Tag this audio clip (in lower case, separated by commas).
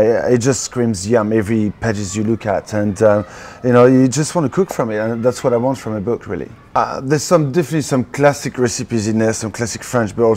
speech